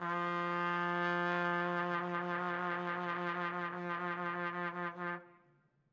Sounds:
Music, Trumpet, Brass instrument, Musical instrument

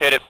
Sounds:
Speech, Human voice, man speaking

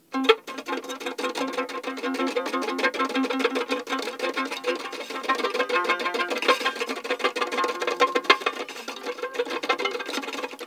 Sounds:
Bowed string instrument, Music, Musical instrument

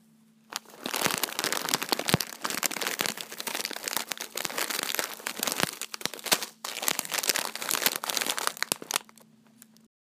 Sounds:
Crumpling

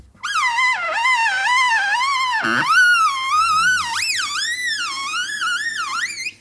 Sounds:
Screech

